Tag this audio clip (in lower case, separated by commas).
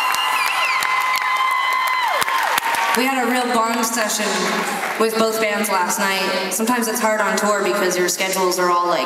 speech, music